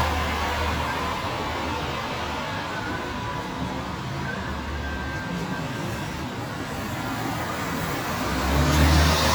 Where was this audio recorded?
on a street